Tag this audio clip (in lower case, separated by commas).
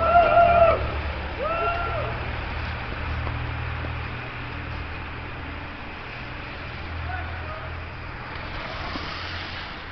vehicle